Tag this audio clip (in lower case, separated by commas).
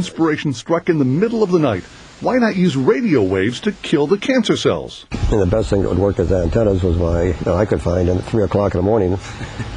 speech